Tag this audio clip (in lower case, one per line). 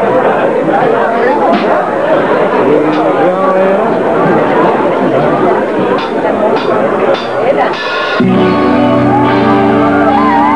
speech
music